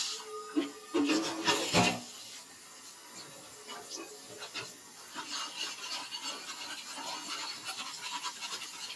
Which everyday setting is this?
kitchen